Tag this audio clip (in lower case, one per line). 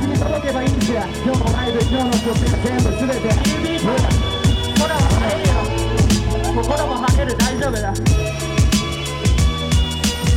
music